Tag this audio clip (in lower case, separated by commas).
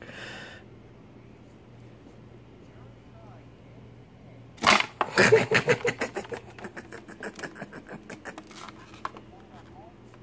speech, inside a small room